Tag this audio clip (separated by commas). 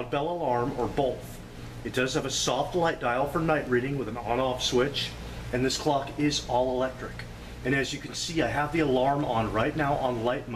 Speech